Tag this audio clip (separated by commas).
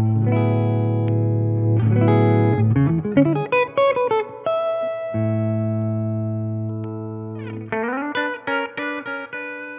Music, Musical instrument, Electric guitar, inside a small room, Guitar, Plucked string instrument